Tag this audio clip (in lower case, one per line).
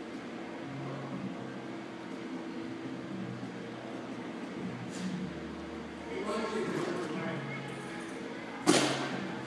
speech